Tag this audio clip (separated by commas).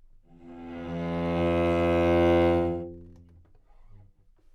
Bowed string instrument, Musical instrument, Music